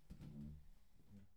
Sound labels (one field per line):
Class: furniture moving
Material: wooden